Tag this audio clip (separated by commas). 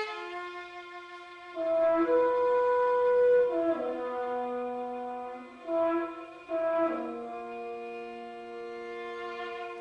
Brass instrument, playing french horn, French horn